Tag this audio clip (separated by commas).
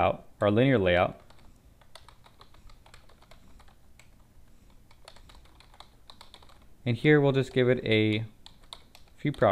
Speech, Typing